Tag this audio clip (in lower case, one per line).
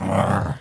dog
pets
growling
animal